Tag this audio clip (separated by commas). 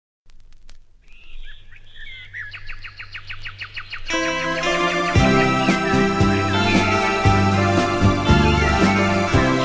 Bird, Music